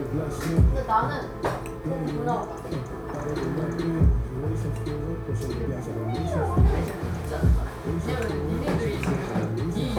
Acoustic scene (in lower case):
cafe